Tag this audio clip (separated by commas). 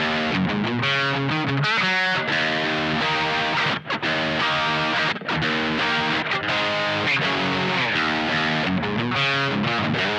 Musical instrument, Guitar, Plucked string instrument, Music, Acoustic guitar, Electric guitar